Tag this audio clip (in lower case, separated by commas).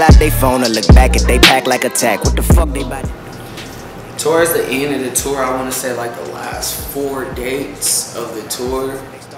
speech, music